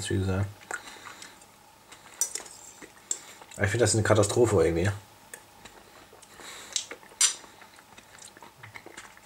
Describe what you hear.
A man speaks and moves silverware